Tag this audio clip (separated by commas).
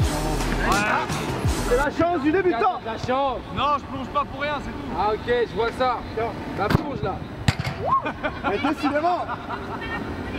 shot football